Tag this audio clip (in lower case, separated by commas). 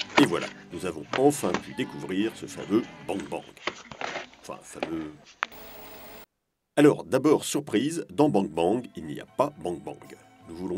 speech, music